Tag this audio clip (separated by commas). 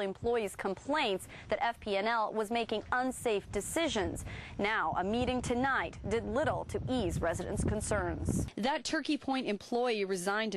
Speech